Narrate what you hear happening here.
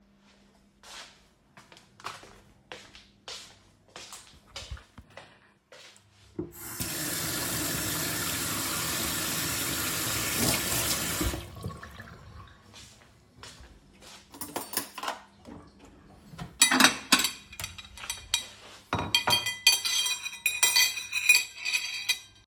I carried my phone into the kitchen and held it near the sink. First I turned on the tap to let water run, then turned it off completely. Next I picked up a spoon and stirred it in a glass bowl several times.